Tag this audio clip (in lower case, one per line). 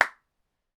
hands
clapping